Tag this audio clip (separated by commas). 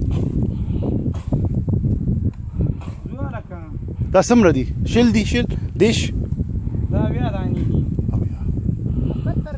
Speech